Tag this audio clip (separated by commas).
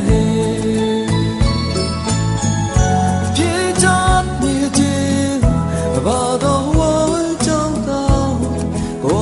Independent music, Music